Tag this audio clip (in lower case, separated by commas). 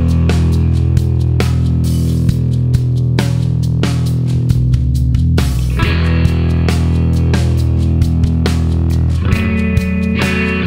music